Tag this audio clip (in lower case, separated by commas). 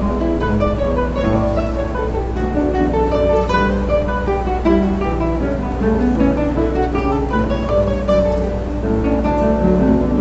musical instrument, music, fiddle